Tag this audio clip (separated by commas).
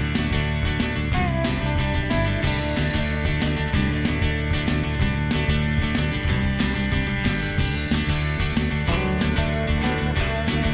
Music